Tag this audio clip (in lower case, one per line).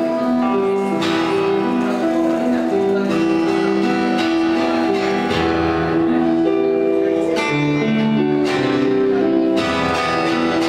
music
blues
traditional music
new-age music